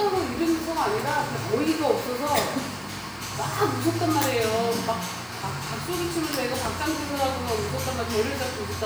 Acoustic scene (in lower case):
cafe